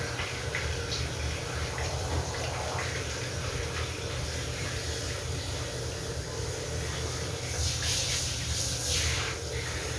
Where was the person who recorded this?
in a restroom